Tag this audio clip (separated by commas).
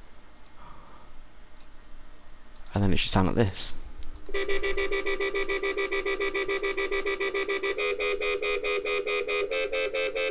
Speech, Music, Electronic music